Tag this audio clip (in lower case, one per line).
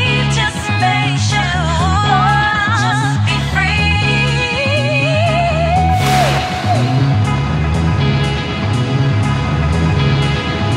music